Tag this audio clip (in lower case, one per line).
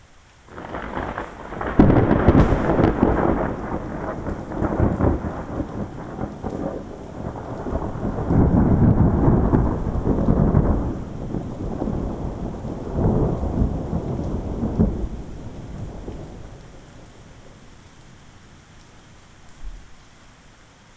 rain
thunder
thunderstorm
water